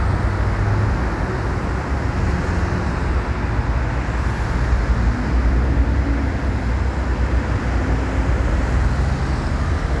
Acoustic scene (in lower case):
street